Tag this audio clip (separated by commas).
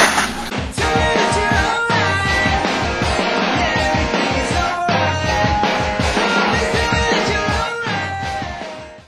Music